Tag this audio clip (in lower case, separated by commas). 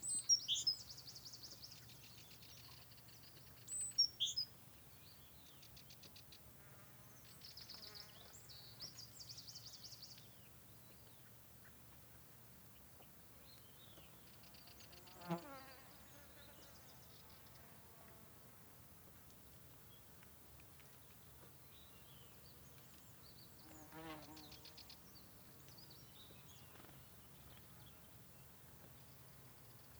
insect, wild animals, animal